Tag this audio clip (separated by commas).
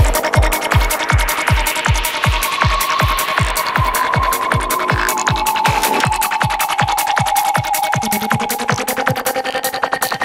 Music, Electronic music, Trance music